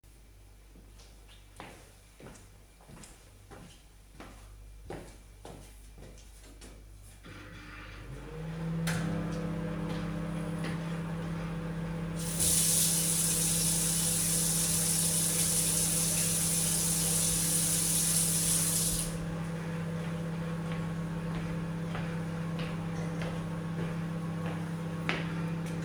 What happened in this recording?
I came into the kitchen, turned on the microwave, then turned on the water. After a few seconds I stopped it and walked away.